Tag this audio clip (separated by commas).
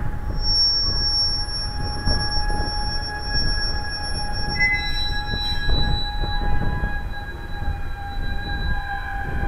train wheels squealing